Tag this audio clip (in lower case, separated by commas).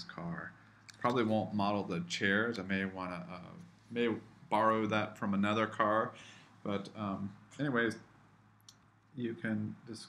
speech